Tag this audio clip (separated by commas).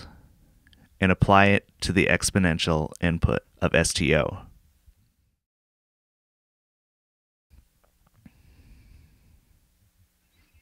Speech